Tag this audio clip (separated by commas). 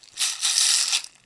Rattle (instrument), Musical instrument, Music, Rattle, Percussion